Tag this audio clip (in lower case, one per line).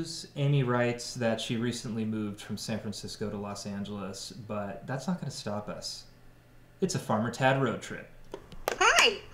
speech